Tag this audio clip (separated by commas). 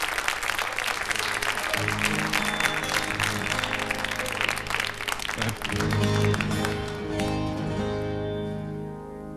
Music